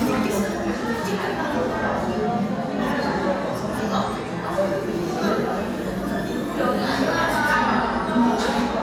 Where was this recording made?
in a crowded indoor space